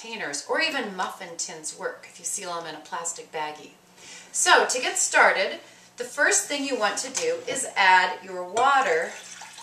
A female voice narrates, accompanied by a small click, and water filling a container